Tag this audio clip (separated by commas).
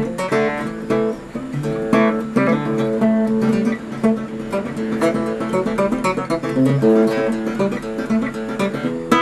Music, Guitar, Strum, Acoustic guitar, Plucked string instrument, Musical instrument